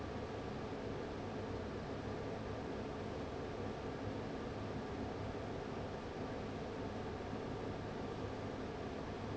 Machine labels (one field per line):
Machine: fan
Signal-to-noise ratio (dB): 6 dB